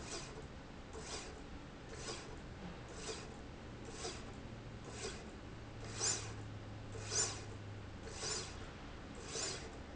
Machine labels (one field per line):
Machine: slide rail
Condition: normal